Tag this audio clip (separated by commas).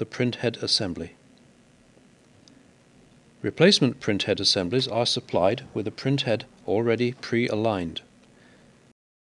Speech